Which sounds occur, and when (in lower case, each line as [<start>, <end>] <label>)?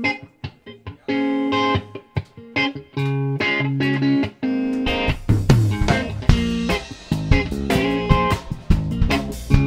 [0.01, 9.65] music